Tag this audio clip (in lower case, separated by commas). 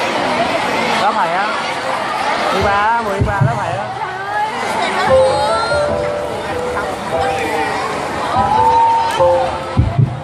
speech, music